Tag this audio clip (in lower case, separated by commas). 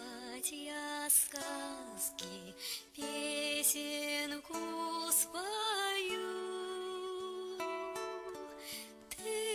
lullaby, music